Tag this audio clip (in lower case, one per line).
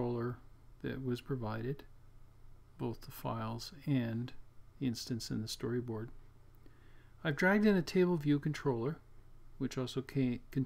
speech